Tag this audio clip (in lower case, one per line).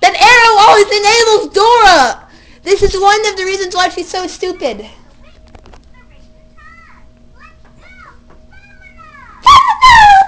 speech